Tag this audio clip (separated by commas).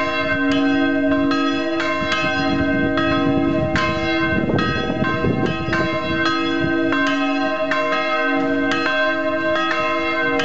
Church bell